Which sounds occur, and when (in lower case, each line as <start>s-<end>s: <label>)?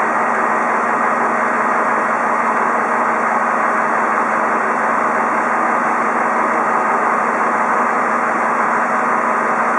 0.0s-9.7s: heavy engine (low frequency)